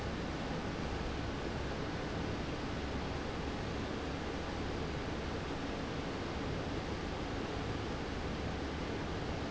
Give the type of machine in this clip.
fan